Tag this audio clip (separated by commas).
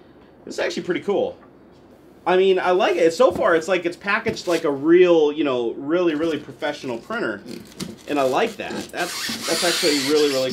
Speech, inside a small room